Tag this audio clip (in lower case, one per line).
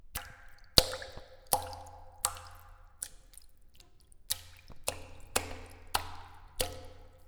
water
liquid
splatter